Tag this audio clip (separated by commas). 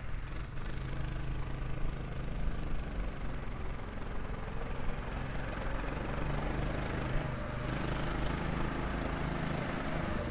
Vehicle